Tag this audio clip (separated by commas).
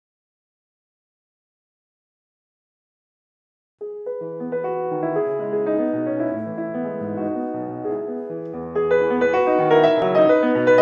Keyboard (musical), Classical music, Piano, Musical instrument, Music